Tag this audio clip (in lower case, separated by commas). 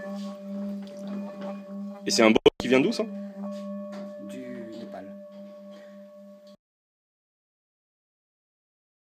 singing bowl